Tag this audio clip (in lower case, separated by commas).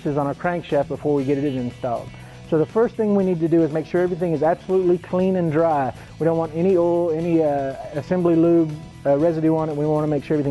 music, speech